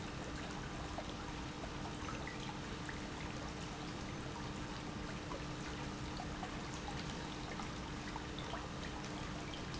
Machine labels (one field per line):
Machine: pump